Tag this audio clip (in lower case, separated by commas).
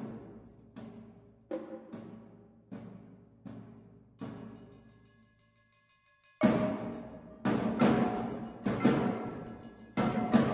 musical instrument, drum kit, music